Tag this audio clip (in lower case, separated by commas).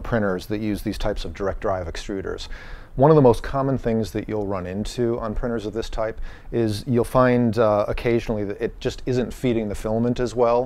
speech